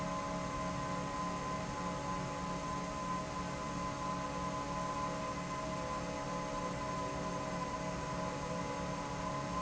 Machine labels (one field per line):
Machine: fan